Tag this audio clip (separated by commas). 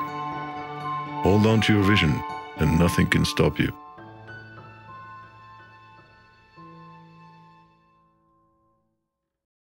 Speech, Music